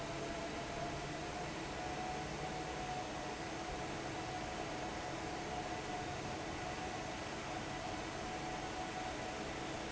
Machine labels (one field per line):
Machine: fan